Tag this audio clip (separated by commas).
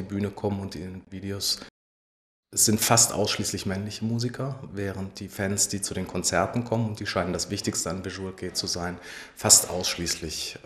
Speech